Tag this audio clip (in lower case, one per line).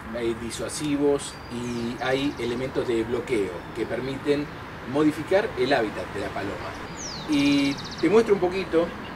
outside, urban or man-made
dove
speech
bird